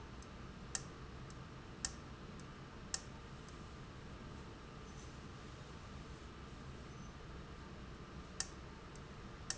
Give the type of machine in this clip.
valve